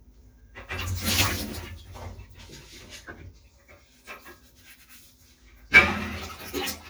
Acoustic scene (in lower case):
kitchen